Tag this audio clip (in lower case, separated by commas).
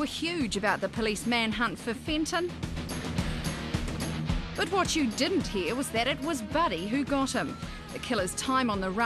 music, speech